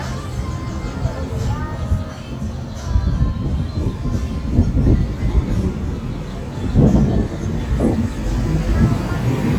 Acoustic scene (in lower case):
street